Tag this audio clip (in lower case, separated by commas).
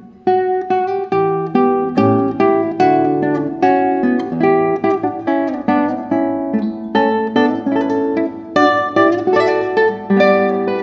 plucked string instrument, musical instrument, guitar, acoustic guitar, music